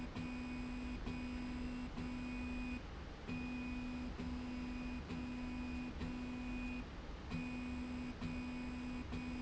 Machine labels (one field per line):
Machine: slide rail